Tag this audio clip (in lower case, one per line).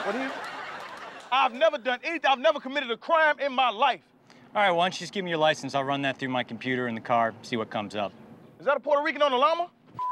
speech